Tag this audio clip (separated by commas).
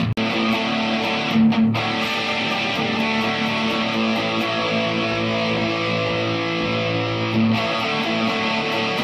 Music, Guitar, Male singing, Musical instrument, Strum, Plucked string instrument, Electric guitar